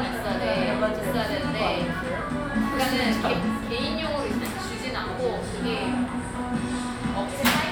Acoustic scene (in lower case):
cafe